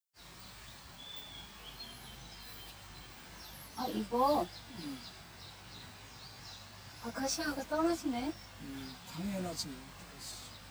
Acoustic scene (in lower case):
park